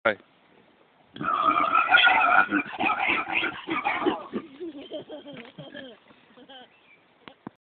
A man speaks, a few pigs oink and squeal, and a child giggles